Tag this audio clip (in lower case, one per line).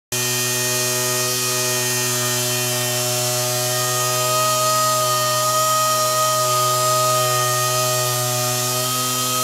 tools